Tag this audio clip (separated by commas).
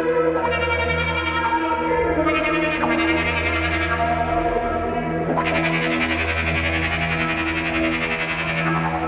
Music, Ambient music